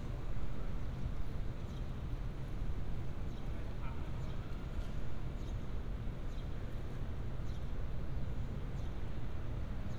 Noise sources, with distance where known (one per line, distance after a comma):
background noise